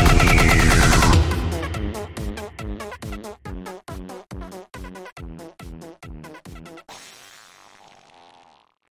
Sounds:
music
dubstep

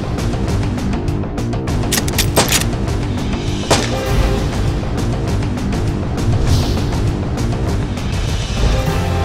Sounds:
music

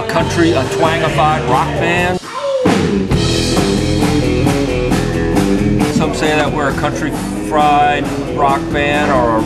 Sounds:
music
speech

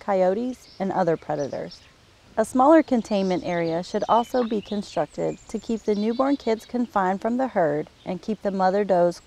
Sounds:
speech

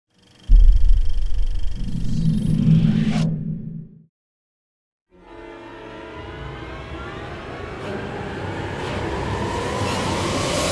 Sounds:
music
sound effect

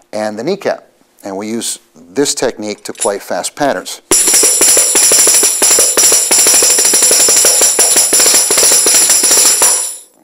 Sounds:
playing tambourine

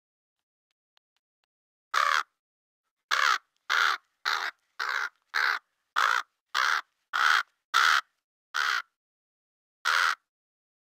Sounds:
crow cawing

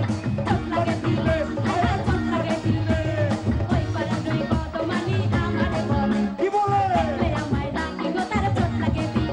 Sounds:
female singing
male singing
music

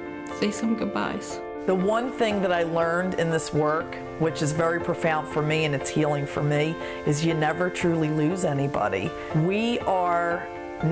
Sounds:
music
speech

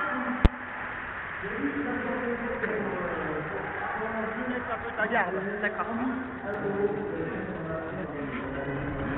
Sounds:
speech

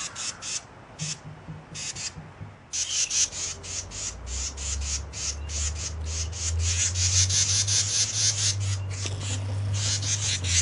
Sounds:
bird

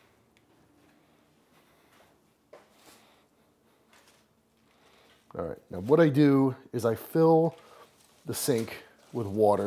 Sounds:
speech

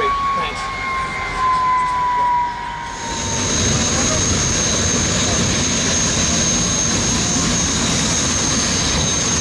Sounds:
outside, rural or natural
vehicle
speedboat
speech

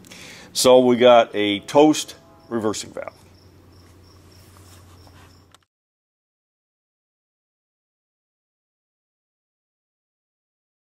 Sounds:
speech

